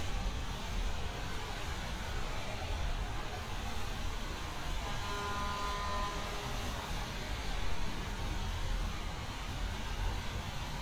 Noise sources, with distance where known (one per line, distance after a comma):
car horn, far